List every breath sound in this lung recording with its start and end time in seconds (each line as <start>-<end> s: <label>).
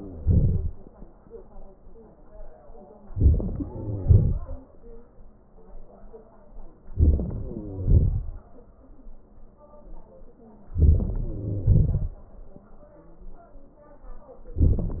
0.21-0.88 s: exhalation
3.06-3.63 s: crackles
3.08-3.69 s: inhalation
3.65-4.38 s: crackles
3.67-4.84 s: exhalation
6.88-7.62 s: crackles
6.89-7.62 s: inhalation
7.63-8.30 s: crackles
7.63-8.71 s: exhalation
10.76-11.39 s: inhalation
10.76-11.39 s: crackles
11.40-12.15 s: crackles
11.41-12.68 s: exhalation